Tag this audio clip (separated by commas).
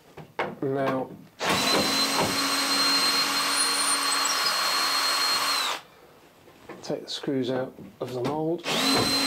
Tools, Power tool